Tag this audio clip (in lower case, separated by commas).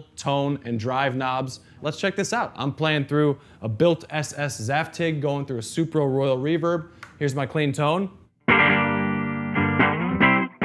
music, speech